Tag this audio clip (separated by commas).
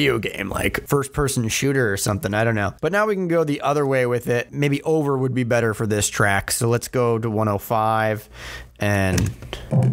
Speech